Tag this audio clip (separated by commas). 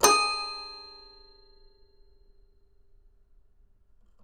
Music, Keyboard (musical), Musical instrument